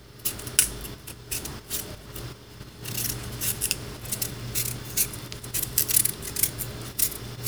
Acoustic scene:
kitchen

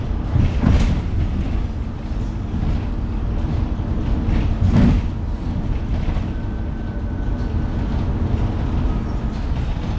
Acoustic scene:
bus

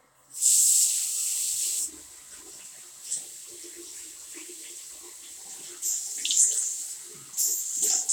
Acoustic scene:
restroom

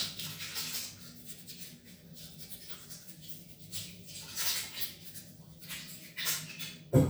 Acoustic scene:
restroom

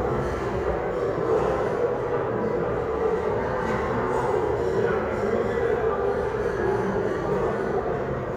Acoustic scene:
restaurant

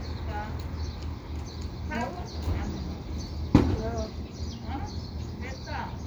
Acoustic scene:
residential area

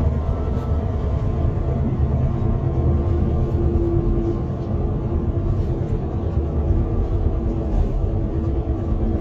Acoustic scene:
car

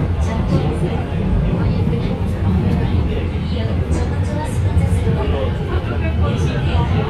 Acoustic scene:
subway train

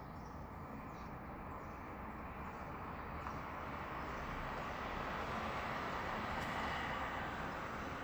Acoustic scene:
residential area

